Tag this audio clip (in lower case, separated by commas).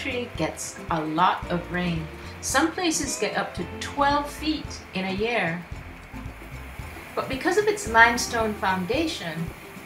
music, speech